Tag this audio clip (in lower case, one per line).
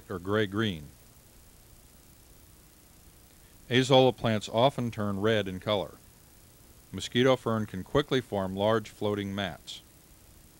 speech